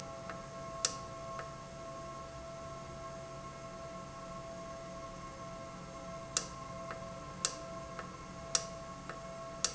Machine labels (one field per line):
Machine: valve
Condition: normal